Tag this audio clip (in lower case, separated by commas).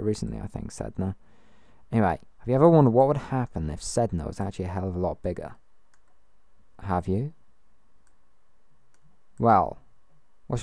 speech